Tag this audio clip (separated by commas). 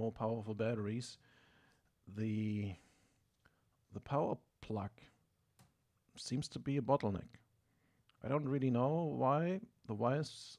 Speech